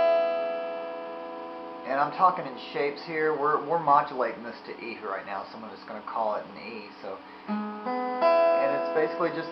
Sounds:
speech
acoustic guitar
plucked string instrument
guitar
strum
music
musical instrument

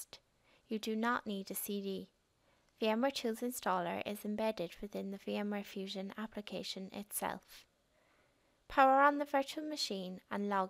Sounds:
speech

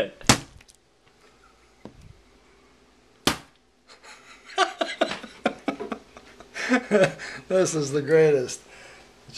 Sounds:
speech

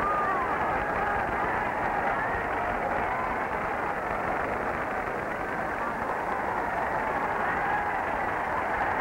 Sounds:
hubbub
crowd

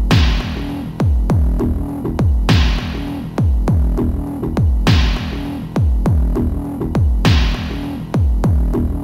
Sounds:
music

